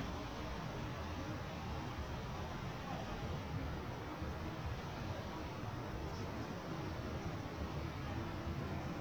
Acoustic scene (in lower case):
residential area